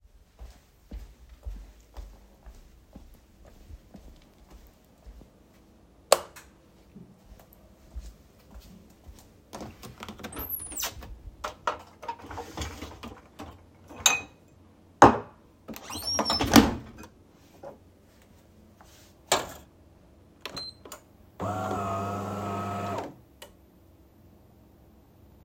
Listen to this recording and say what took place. I walked to the kitchen where I opened the light and then took out a cup from the dishwasher. I then placed this cup under the coffee machine and started the coffee machine.